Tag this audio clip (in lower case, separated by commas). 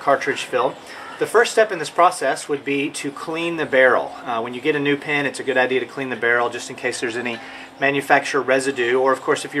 speech